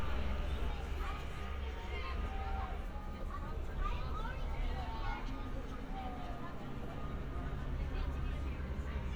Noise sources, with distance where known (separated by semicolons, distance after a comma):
reverse beeper, far; person or small group talking, near